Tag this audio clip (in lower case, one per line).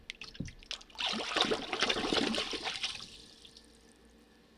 water
liquid
splatter